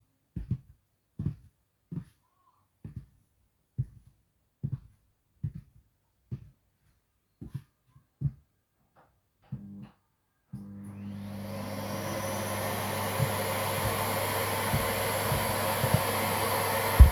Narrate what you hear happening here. i walked to the vacuum cleaner then turned it on